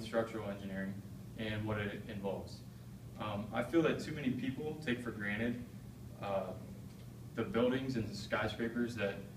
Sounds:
man speaking
narration
speech

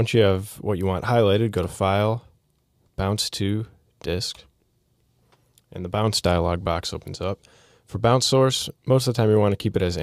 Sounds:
speech

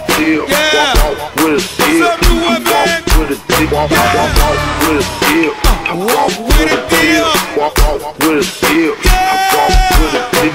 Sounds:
music

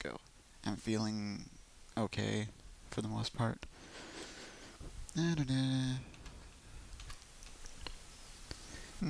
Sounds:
speech

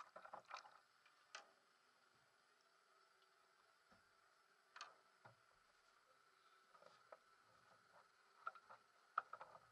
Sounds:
water vehicle
vehicle
canoe

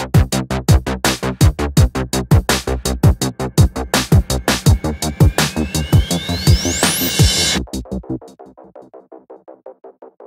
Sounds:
drum machine

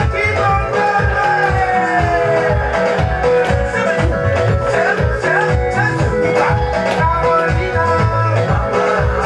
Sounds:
music of africa
music

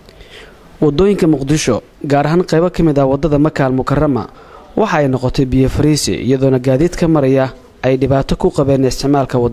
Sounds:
speech

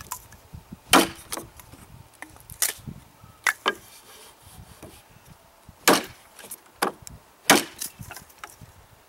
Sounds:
wood

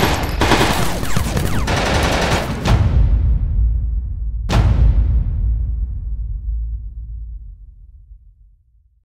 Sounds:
music
sound effect

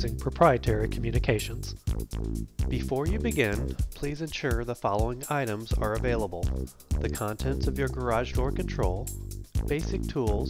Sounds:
speech
music

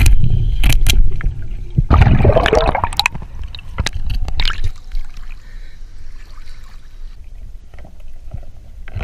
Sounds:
scuba diving

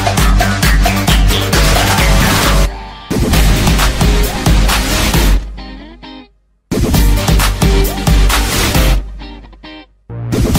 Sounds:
soundtrack music
music

